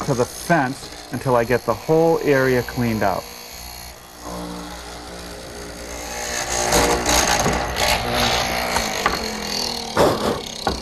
A man talks, followed by a buzzing sound